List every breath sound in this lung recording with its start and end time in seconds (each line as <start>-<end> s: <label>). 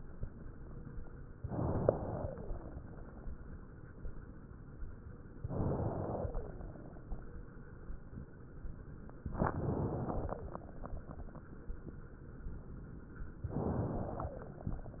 1.37-2.81 s: inhalation
2.03-2.81 s: wheeze
5.33-6.89 s: inhalation
6.23-6.89 s: wheeze
9.27-10.98 s: inhalation
10.25-10.98 s: wheeze
13.43-14.94 s: inhalation
14.07-14.90 s: wheeze